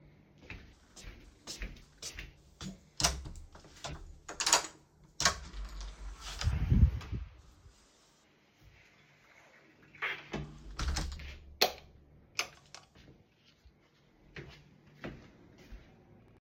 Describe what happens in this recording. I entered my room from the hallway while walking toward the light switch. I switched the light on and moved further inside. During the same scene, the door was opened and closed.